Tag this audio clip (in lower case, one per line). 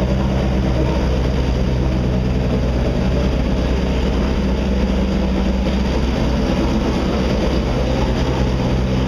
car
revving
vehicle